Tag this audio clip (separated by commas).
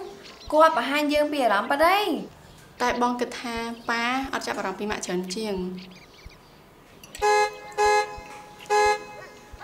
Speech, Vehicle horn